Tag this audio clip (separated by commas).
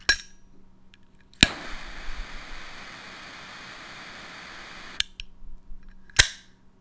Fire